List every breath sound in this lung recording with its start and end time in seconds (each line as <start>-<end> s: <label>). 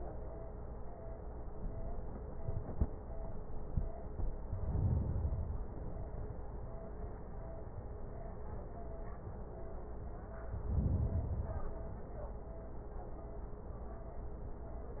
4.42-5.71 s: inhalation
10.59-11.89 s: inhalation